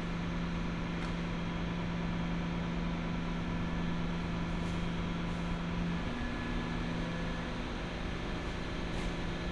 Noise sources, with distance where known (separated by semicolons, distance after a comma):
engine of unclear size